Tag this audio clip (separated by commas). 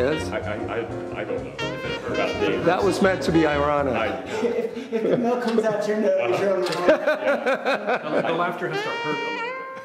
Saxophone, Speech, Music